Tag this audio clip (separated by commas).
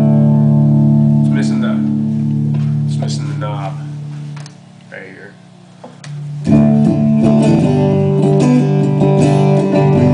Guitar, Speech, Plucked string instrument, Music, Musical instrument